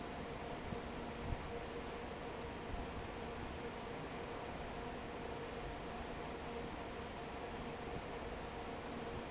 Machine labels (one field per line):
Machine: fan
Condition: normal